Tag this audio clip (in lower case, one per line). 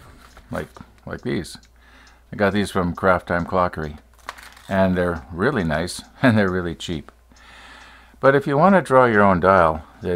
speech
tick